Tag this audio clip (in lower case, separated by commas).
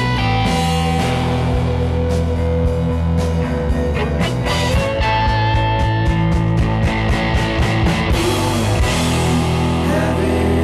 music